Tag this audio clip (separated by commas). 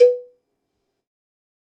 Cowbell, Bell